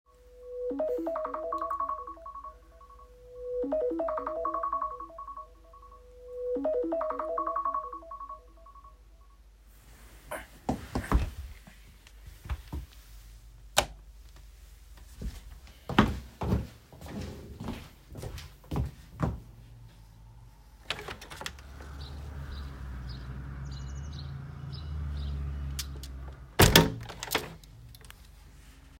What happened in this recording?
The alarm started ringing.Then I got up,I switched on the light and walked to the window and opened it. Finally I closed the window